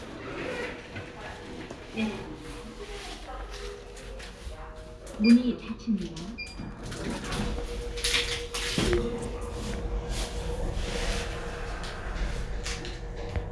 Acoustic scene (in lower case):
elevator